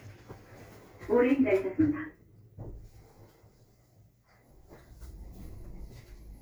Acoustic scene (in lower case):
elevator